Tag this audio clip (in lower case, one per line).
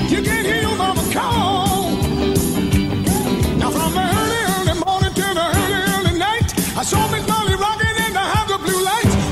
music
rock and roll